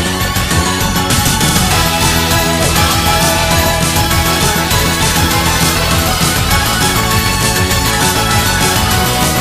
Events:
0.0s-9.4s: music

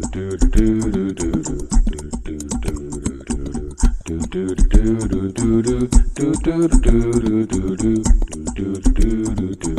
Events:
0.0s-9.7s: music

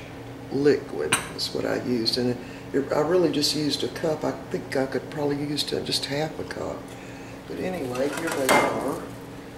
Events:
0.0s-9.5s: mechanisms
6.9s-7.4s: breathing
7.9s-9.0s: dishes, pots and pans

